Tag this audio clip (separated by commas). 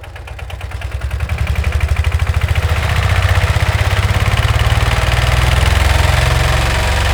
Engine, Idling, Accelerating